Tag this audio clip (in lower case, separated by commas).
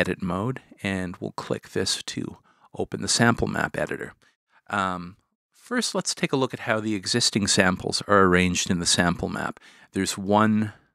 speech